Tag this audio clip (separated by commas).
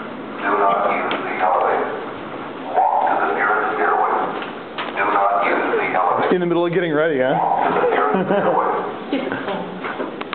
Speech